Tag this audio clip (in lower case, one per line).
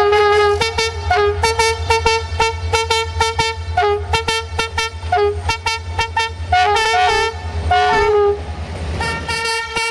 vehicle
rail transport
train
toot
train wagon